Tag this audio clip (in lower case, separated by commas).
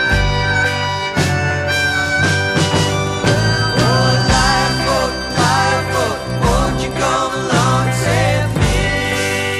soul music, music